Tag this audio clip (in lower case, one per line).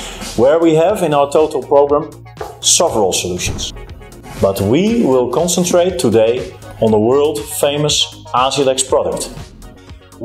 speech
music